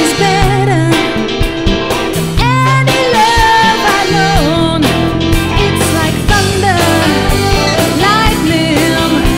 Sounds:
Music

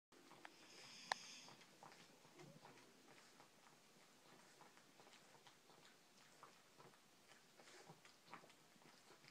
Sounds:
Dog, Domestic animals, Animal, Snort

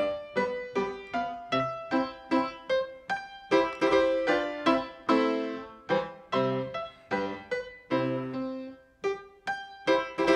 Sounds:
Music, Exciting music

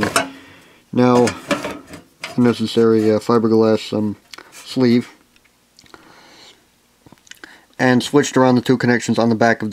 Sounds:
Speech

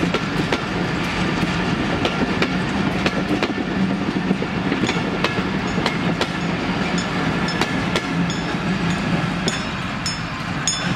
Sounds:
train whistling

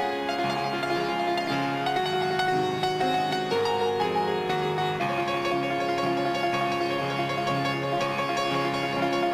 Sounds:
Gospel music, Music

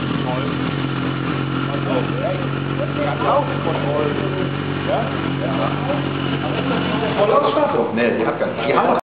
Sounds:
Field recording, Speech

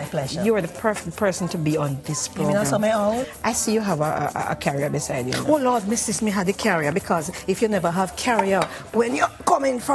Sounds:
Music, Speech

